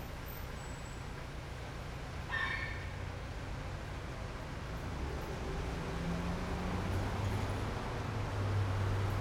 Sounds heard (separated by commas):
bus engine idling, car, car engine accelerating, bus, bus engine accelerating, car wheels rolling, car engine idling